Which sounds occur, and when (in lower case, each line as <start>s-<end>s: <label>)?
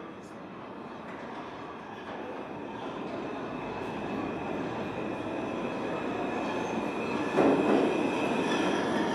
0.0s-9.1s: subway